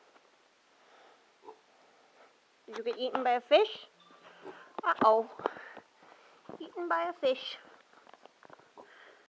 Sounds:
Speech

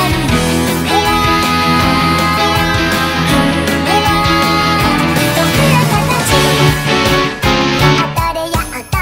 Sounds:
Plucked string instrument, Acoustic guitar, Musical instrument, Music, Guitar, Strum

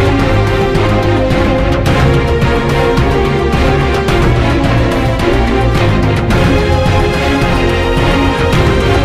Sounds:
Music, Background music

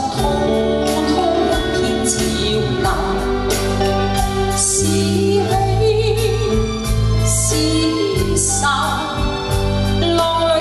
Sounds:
Music

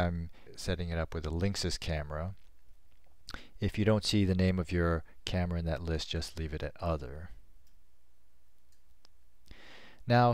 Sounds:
Speech

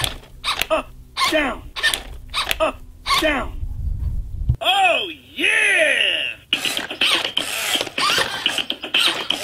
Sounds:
Speech

